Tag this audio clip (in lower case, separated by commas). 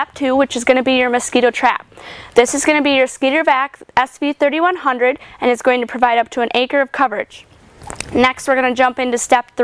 speech